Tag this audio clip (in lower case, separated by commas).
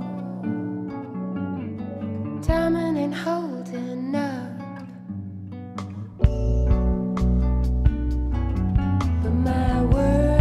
music